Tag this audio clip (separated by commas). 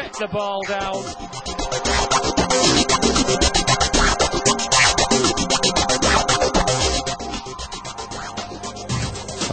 Speech, Music